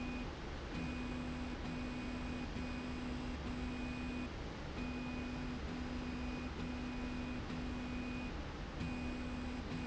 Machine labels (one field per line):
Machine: slide rail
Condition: normal